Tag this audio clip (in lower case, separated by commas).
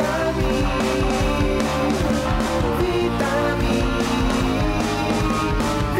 music